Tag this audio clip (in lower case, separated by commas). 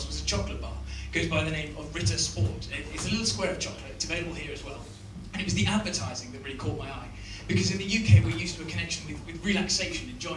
speech